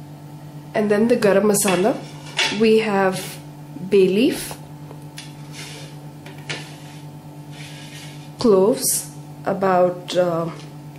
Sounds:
speech

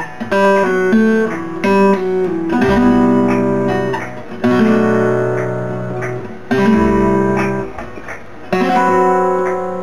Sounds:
musical instrument, acoustic guitar, music, plucked string instrument, guitar, playing acoustic guitar, strum

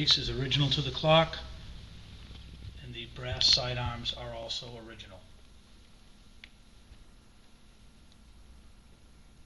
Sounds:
speech

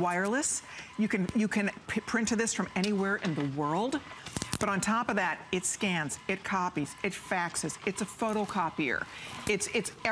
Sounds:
speech, printer

